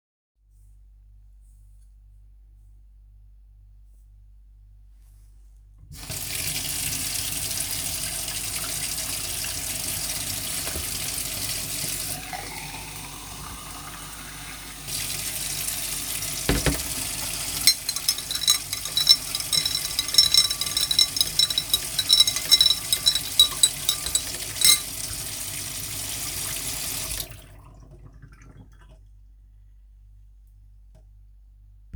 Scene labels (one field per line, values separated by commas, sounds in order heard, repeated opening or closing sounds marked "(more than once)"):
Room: kitchen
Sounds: running water, cutlery and dishes